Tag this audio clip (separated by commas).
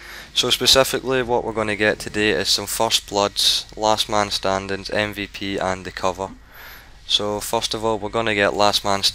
Speech